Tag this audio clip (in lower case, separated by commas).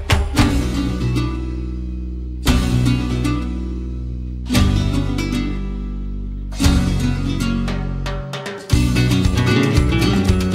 music